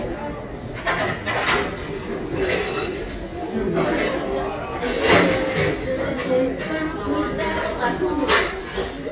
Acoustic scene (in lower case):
restaurant